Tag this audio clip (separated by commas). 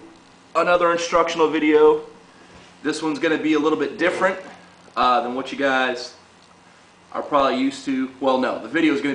Speech